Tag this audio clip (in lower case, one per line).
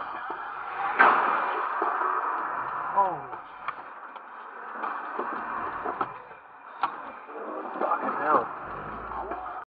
music
speech